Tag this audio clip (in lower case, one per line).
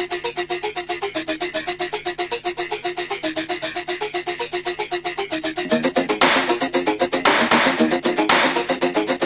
music